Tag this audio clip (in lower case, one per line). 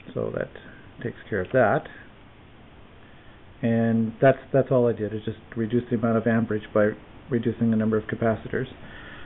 speech